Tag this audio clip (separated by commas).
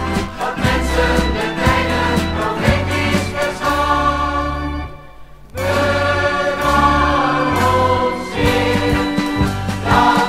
Music